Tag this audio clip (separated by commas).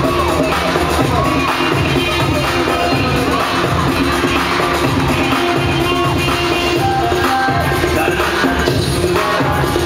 Music